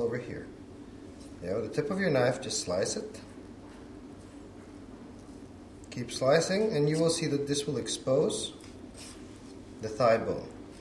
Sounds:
speech

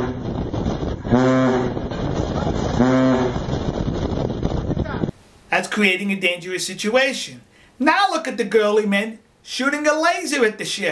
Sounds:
inside a small room, outside, rural or natural, speech

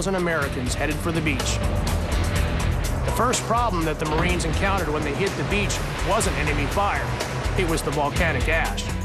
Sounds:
music, speech

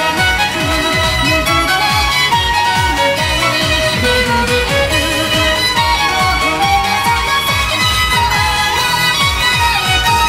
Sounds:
musical instrument, violin, music

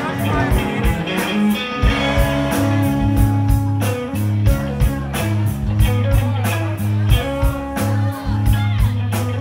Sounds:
independent music, jazz, music, speech

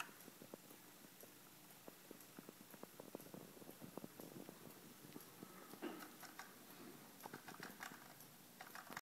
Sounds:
tick

